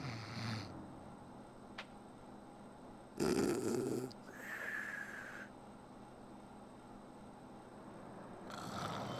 A person snores while sleeping